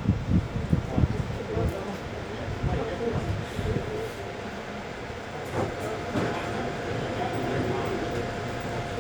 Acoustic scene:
subway train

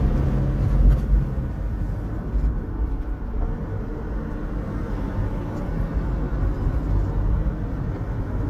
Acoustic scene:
car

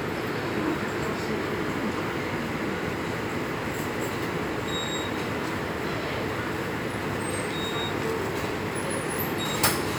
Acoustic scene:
subway station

